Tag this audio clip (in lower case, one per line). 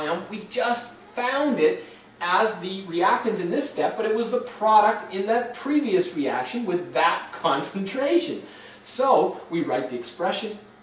speech